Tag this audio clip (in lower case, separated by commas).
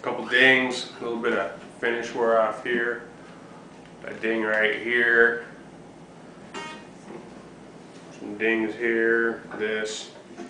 music, speech